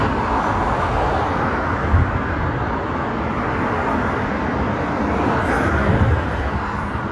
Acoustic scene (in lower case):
street